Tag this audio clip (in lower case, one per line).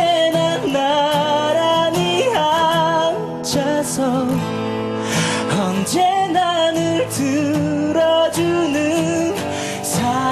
male singing
music